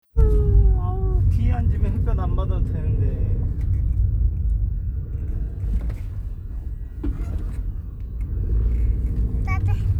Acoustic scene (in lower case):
car